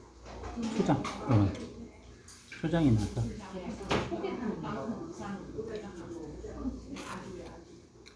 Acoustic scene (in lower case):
restaurant